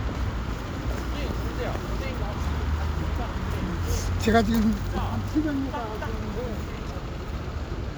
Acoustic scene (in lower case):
street